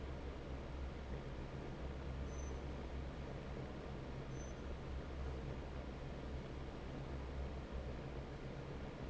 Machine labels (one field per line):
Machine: fan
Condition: normal